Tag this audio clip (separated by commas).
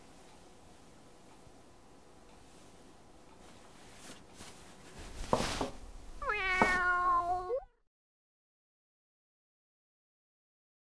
cat meowing